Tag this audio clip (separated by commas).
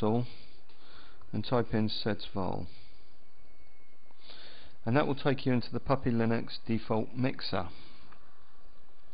Speech